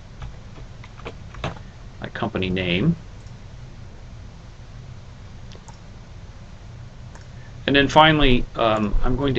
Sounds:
Speech

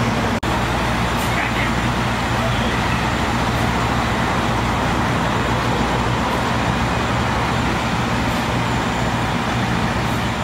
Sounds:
Speech

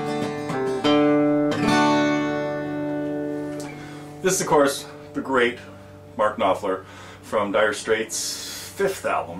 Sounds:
Acoustic guitar, Guitar, Music, Plucked string instrument, Strum, Musical instrument

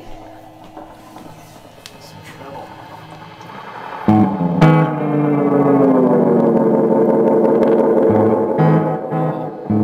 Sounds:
Music, Speech

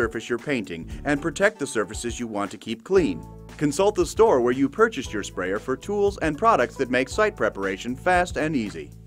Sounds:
Speech, Music

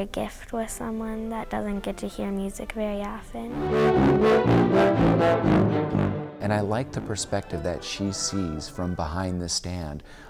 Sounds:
Classical music, Speech, Orchestra, Musical instrument, Music, Violin, inside a large room or hall

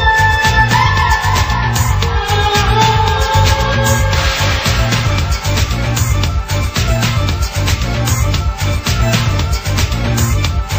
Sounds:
Music, Video game music

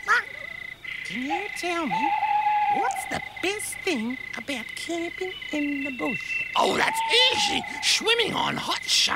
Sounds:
Speech

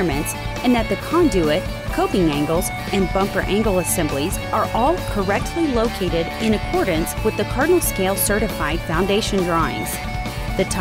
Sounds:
Speech, Music

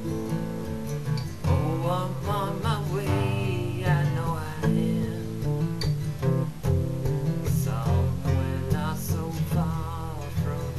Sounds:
Music

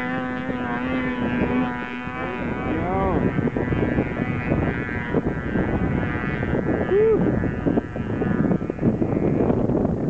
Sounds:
Speech

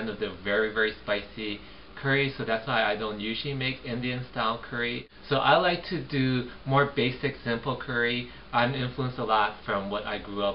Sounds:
Speech

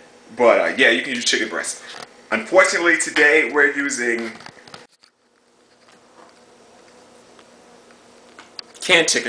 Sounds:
Speech

